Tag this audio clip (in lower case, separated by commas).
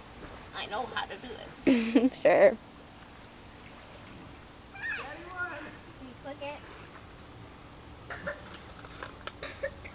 speech